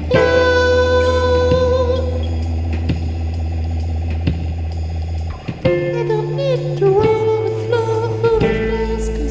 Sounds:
music
funny music

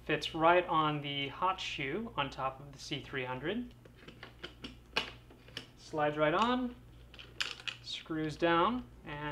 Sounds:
speech

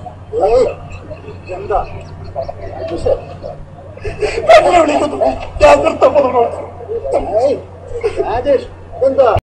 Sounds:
speech

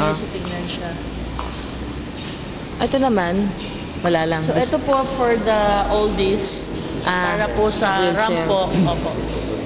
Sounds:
speech

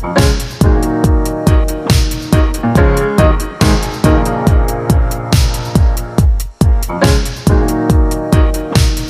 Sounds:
music

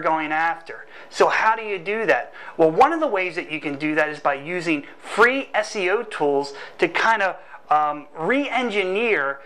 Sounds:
speech

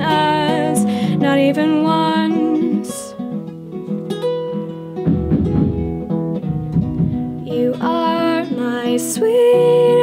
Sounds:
flamenco

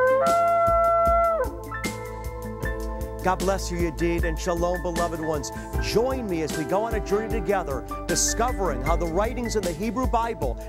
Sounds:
speech
music

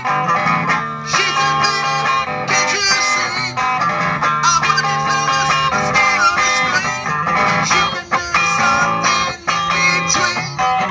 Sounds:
musical instrument
plucked string instrument
electric guitar
music

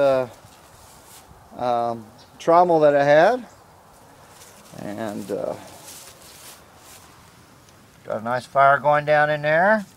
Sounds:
speech

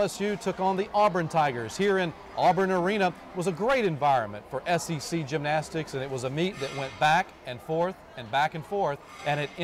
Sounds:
speech

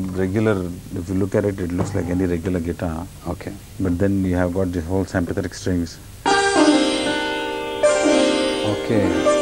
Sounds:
speech
music
sitar

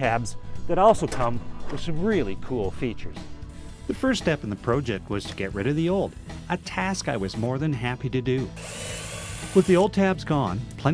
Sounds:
speech
music

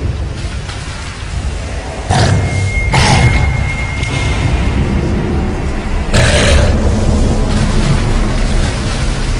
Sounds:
white noise

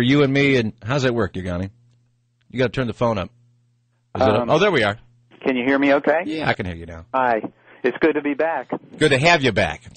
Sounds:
speech

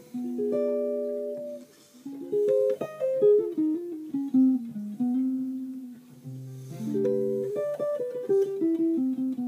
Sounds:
plucked string instrument
musical instrument
bass guitar
guitar

